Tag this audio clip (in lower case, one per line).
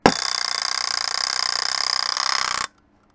alarm